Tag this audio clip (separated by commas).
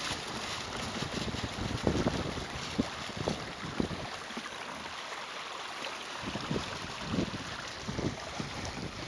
Water vehicle